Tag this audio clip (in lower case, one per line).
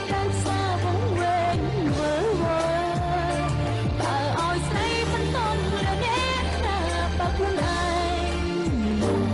music